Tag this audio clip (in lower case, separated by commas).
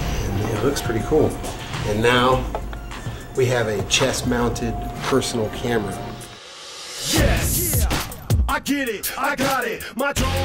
music, speech